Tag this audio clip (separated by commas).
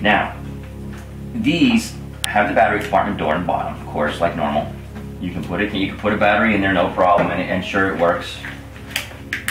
Speech, inside a small room